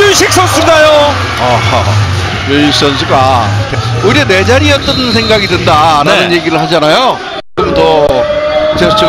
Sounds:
playing volleyball

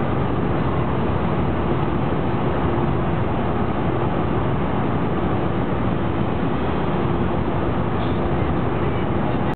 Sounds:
Vehicle

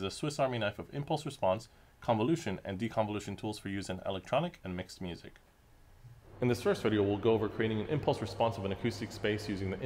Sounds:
Speech

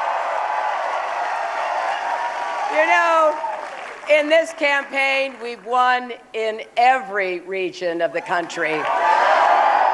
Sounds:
Speech, Female speech

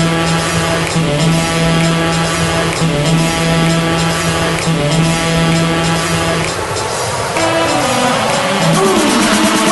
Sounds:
Music

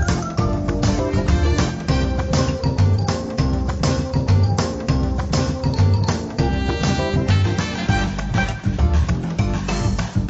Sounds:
Music

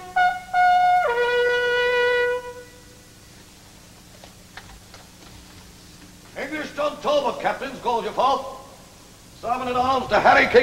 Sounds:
Wind instrument, Shofar

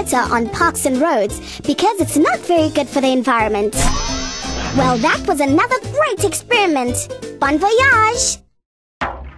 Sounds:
Music, Speech

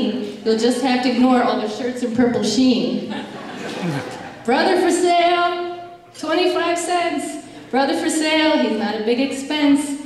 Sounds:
Female speech, Speech

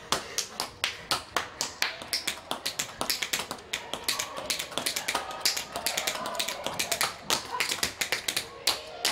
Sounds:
tap dancing

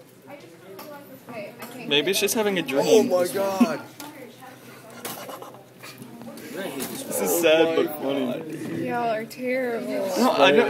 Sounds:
Speech

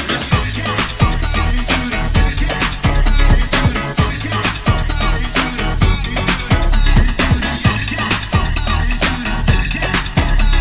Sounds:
Music, Disco, House music, Electronic music, Synthesizer

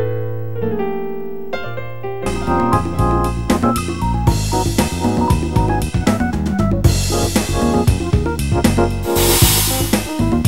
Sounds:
Electric piano, Keyboard (musical), Music, Piano, Synthesizer, playing piano, Musical instrument

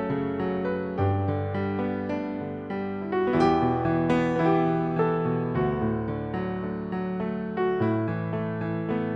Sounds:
Keyboard (musical), Piano

